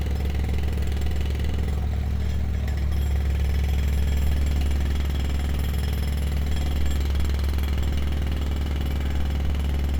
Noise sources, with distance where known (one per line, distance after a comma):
jackhammer, near